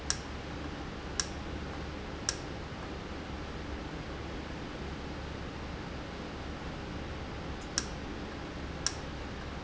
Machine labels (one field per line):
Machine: valve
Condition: normal